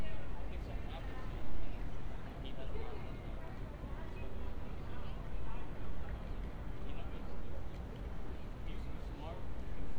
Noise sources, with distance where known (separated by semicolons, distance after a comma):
unidentified human voice